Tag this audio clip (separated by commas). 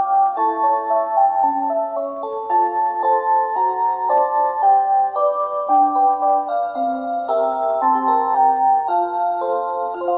Music